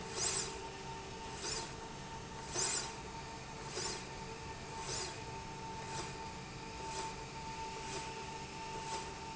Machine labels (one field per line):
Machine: slide rail